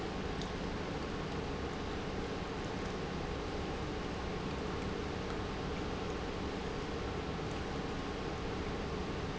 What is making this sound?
pump